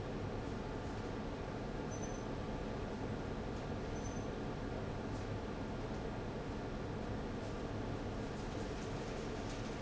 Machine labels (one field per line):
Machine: fan